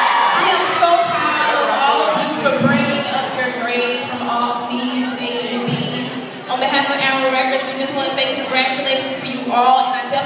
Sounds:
Speech

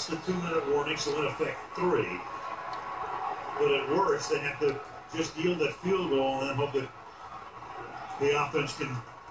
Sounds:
Speech

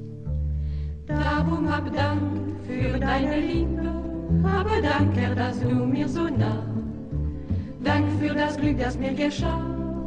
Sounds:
Female singing, Music, Choir

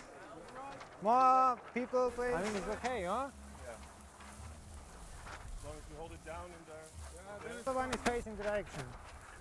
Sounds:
Speech

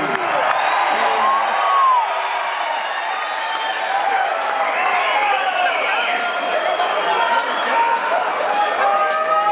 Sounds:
Music

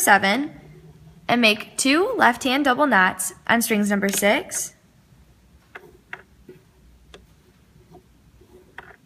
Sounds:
Speech

